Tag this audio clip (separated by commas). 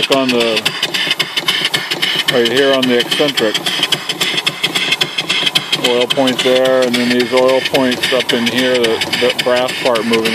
Speech, Engine